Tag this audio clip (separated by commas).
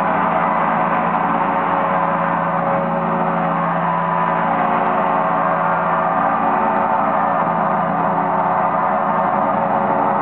playing gong